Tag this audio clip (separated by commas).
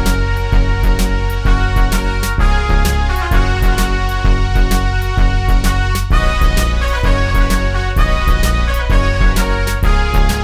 Music, Sound effect